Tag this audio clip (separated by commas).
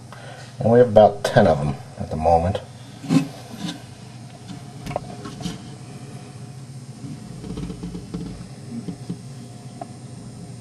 Speech